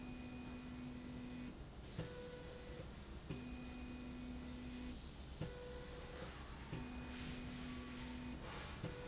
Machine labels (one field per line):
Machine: slide rail